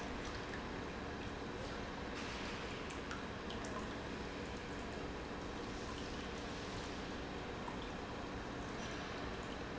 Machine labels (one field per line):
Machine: pump